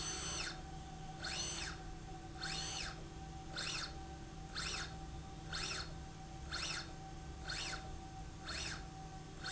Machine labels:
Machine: slide rail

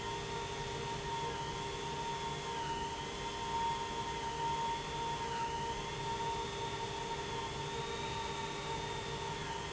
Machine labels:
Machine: pump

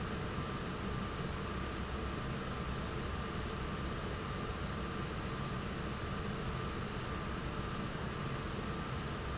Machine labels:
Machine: fan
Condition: normal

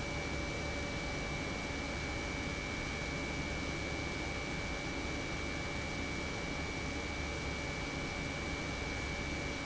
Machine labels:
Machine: pump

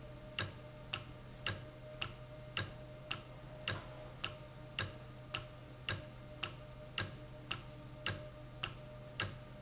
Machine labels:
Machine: valve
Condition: normal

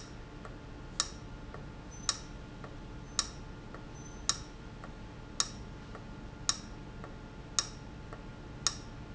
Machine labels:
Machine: valve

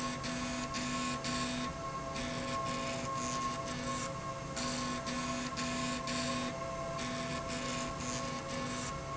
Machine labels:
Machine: slide rail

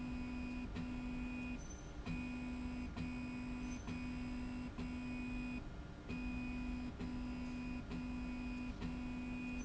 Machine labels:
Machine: slide rail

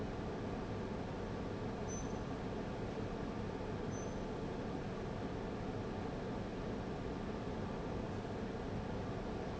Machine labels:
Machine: fan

